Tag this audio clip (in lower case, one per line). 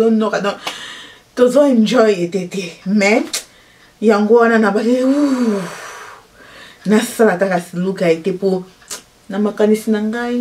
striking pool